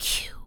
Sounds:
Whispering, Human voice

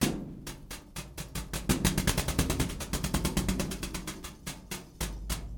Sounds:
Thump

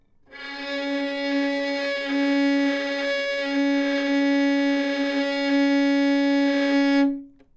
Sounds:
Bowed string instrument, Music, Musical instrument

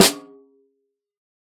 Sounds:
Drum, Musical instrument, Snare drum, Music, Percussion

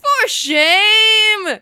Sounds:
Yell, Shout, Human voice

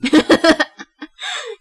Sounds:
Laughter, Human voice

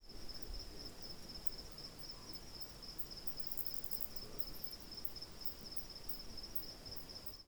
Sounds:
Animal, Insect, Wild animals

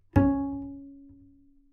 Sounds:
Music, Musical instrument, Bowed string instrument

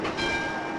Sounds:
Bell

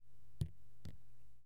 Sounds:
Liquid, Rain, Drip, Water, Raindrop

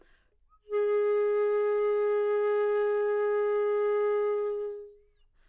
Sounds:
Wind instrument, Music, Musical instrument

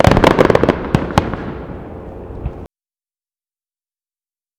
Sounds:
Explosion, Fireworks

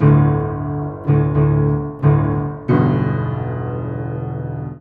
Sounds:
Piano, Keyboard (musical), Music, Musical instrument

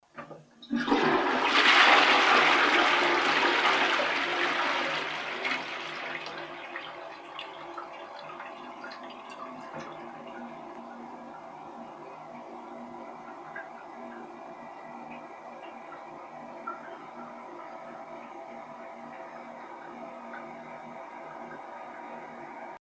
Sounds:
Toilet flush, Domestic sounds

